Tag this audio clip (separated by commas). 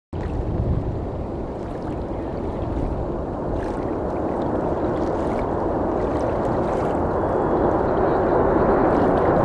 Aircraft, Vehicle